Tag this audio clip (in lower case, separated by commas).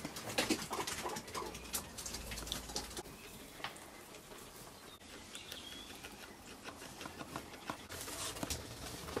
animal, domestic animals